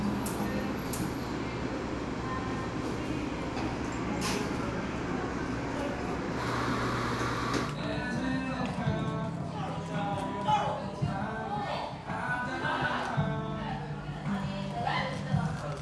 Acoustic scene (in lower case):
cafe